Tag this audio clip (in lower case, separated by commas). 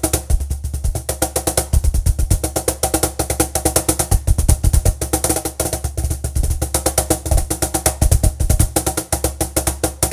percussion, music